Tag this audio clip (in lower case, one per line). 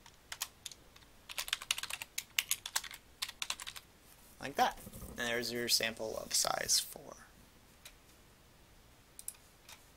computer keyboard